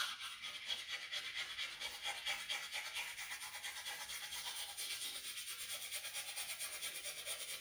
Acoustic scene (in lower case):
restroom